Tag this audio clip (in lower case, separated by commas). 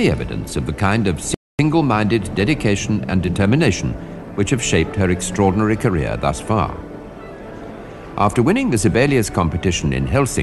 music, violin, musical instrument, speech